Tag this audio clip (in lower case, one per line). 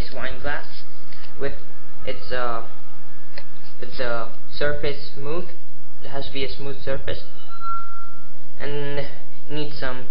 speech